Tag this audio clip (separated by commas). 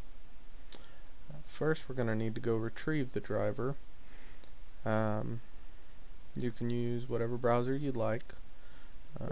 Speech